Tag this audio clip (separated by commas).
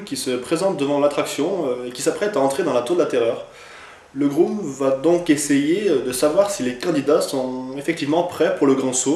Speech